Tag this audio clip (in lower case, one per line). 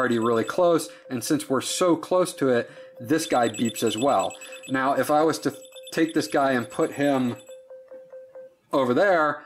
beep
telephone